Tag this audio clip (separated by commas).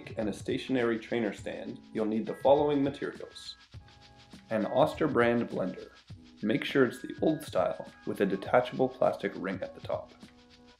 Speech, Music